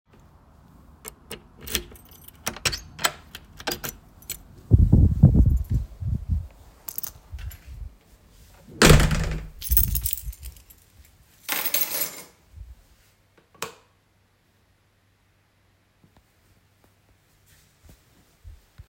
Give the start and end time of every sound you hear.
0.6s-4.5s: door
0.7s-2.4s: keys
3.3s-4.6s: keys
4.7s-16.2s: light switch
5.4s-8.1s: keys
8.6s-9.7s: door
9.5s-16.2s: keys

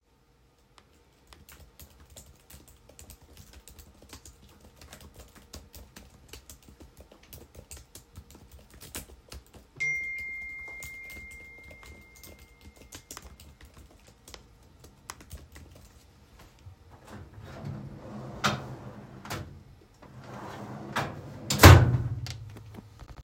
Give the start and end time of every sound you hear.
1.2s-15.7s: keyboard typing
9.8s-14.3s: phone ringing
17.1s-19.5s: wardrobe or drawer
20.2s-22.5s: wardrobe or drawer

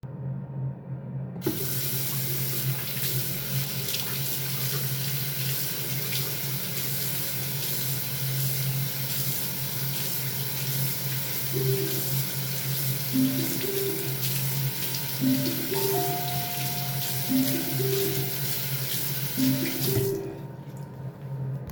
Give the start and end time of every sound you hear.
1.4s-20.3s: running water
11.5s-20.4s: phone ringing
15.7s-17.9s: bell ringing

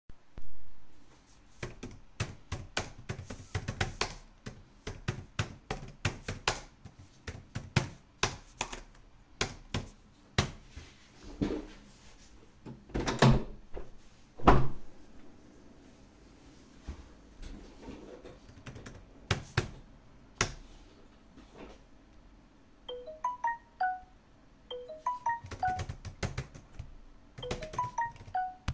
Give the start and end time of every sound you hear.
0.0s-10.8s: keyboard typing
12.7s-15.1s: window
18.4s-20.7s: keyboard typing
18.8s-28.7s: phone ringing
24.7s-28.7s: keyboard typing

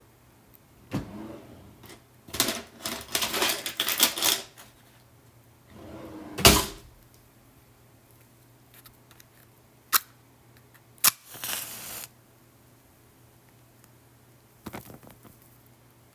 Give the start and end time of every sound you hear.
0.8s-2.0s: wardrobe or drawer
5.7s-7.0s: wardrobe or drawer

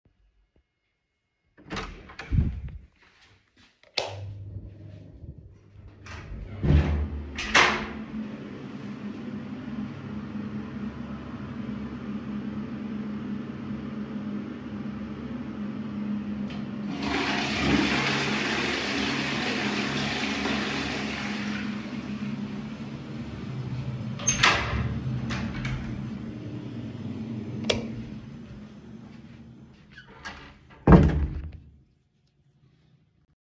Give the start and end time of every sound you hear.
1.5s-3.0s: door
3.9s-4.4s: light switch
6.0s-8.0s: door
16.9s-22.2s: toilet flushing
24.1s-26.2s: door
27.5s-28.1s: light switch
29.9s-32.0s: door

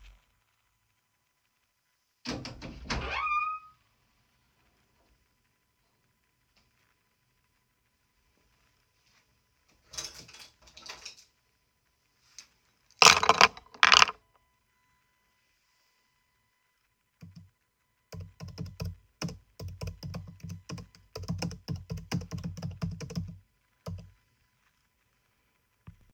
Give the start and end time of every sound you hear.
2.2s-3.9s: window
2.3s-3.6s: door
17.1s-24.3s: keyboard typing

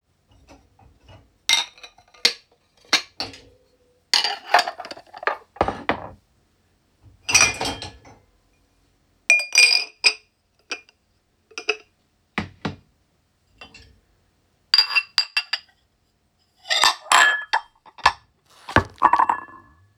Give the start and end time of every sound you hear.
0.4s-6.2s: cutlery and dishes
7.0s-8.4s: cutlery and dishes
9.2s-12.9s: cutlery and dishes
13.6s-14.0s: cutlery and dishes
14.7s-15.7s: cutlery and dishes
16.6s-20.0s: cutlery and dishes

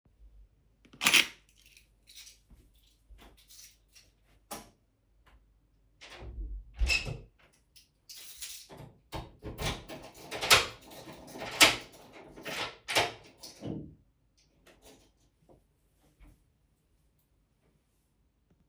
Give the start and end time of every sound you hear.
0.9s-4.1s: keys
4.4s-4.8s: light switch
6.0s-7.4s: door
8.1s-8.9s: keys
12.4s-13.9s: door

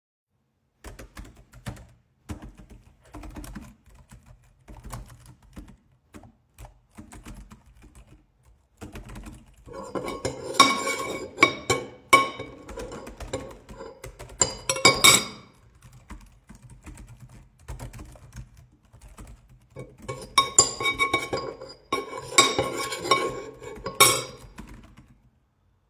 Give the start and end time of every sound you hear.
0.7s-10.3s: keyboard typing
9.8s-15.4s: cutlery and dishes
12.6s-25.2s: keyboard typing
20.0s-24.6s: cutlery and dishes

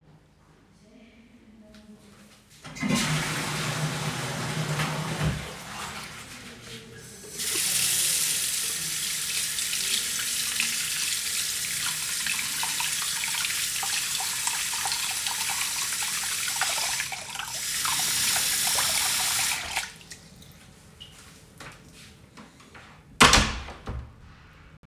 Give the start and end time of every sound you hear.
2.6s-7.0s: toilet flushing
7.2s-20.3s: running water
23.1s-24.4s: door

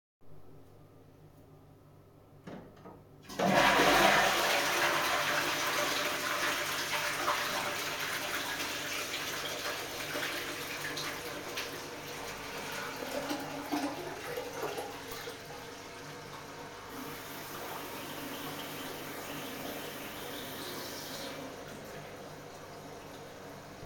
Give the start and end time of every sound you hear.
3.4s-15.4s: toilet flushing
16.8s-21.9s: toilet flushing
16.9s-21.3s: running water

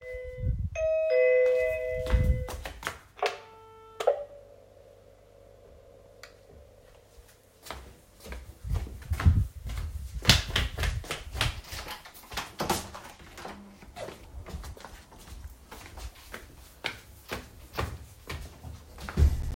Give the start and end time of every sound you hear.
0.0s-2.7s: bell ringing
2.0s-3.9s: footsteps
7.6s-13.7s: footsteps
12.2s-14.3s: door
14.2s-19.6s: footsteps

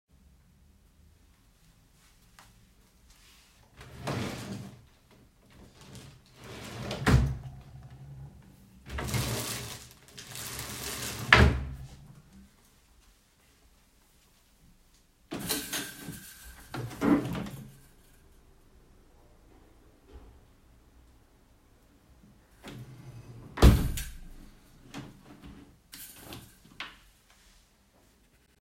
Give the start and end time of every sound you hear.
3.8s-4.9s: wardrobe or drawer
5.8s-7.9s: wardrobe or drawer
8.7s-12.1s: wardrobe or drawer
15.2s-17.9s: window
22.6s-27.0s: window

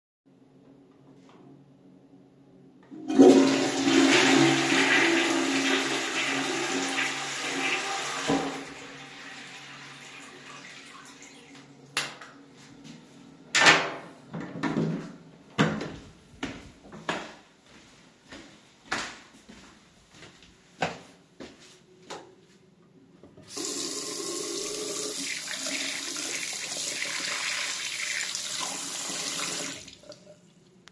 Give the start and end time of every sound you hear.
3.0s-12.2s: toilet flushing
11.8s-12.3s: light switch
12.4s-13.1s: light switch
13.5s-18.2s: door
18.1s-22.8s: footsteps
21.9s-22.4s: light switch
23.4s-30.9s: running water

